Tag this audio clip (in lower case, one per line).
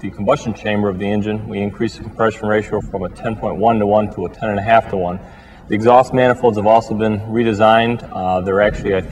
speech